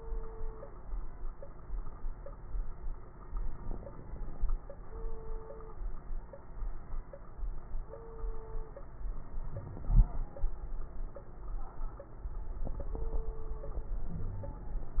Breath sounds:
9.49-9.87 s: wheeze
14.13-14.63 s: wheeze

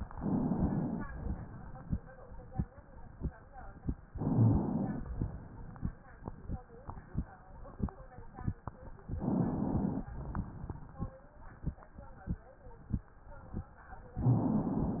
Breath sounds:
0.11-1.04 s: inhalation
1.03-2.19 s: exhalation
4.11-5.13 s: inhalation
5.06-6.17 s: exhalation
9.11-10.14 s: inhalation
10.11-11.22 s: exhalation
10.11-11.22 s: crackles

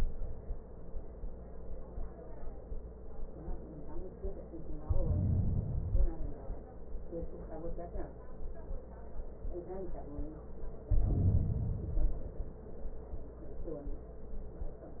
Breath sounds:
4.83-5.90 s: inhalation
5.89-6.83 s: exhalation
10.85-11.87 s: inhalation
11.85-12.73 s: exhalation

